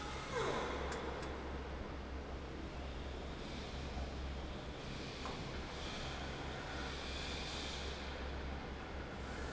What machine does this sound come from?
fan